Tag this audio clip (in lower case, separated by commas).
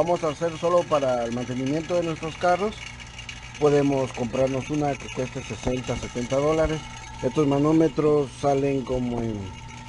car engine idling